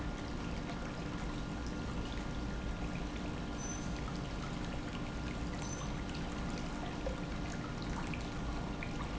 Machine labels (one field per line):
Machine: pump